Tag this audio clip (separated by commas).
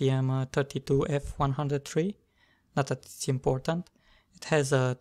Speech